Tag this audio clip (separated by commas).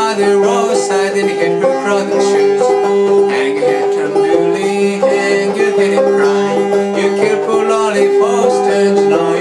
Music, Male singing